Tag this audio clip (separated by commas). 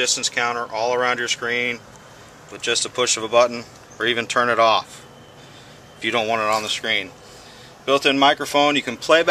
Speech